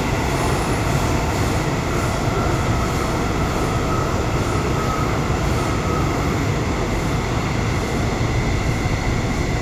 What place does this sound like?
subway train